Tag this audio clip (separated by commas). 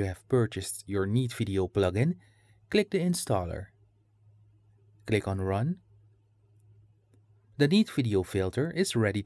Speech